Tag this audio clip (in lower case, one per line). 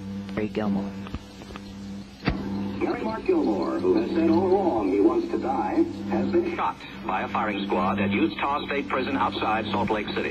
speech